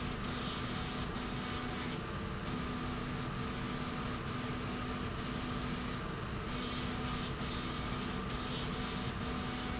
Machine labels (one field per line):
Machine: slide rail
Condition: abnormal